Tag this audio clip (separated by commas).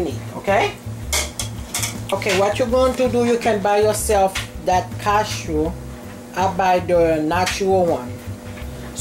Music, Speech